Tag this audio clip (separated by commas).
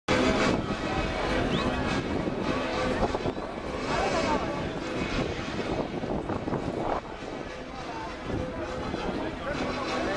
Music, Speech